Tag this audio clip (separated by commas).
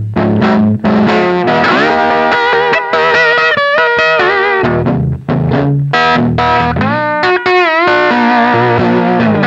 Plucked string instrument, Strum, Guitar, Musical instrument, Music, Electric guitar, Bass guitar